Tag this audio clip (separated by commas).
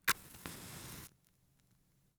Fire